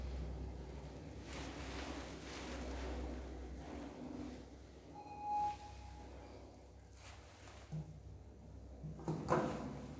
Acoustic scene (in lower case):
elevator